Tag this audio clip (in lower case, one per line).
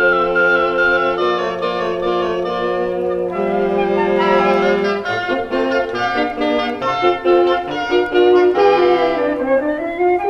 music